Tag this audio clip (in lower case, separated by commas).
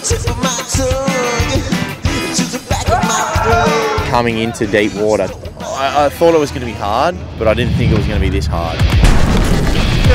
speech, music